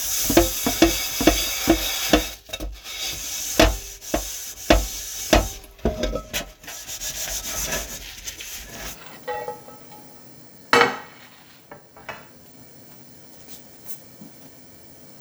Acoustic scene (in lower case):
kitchen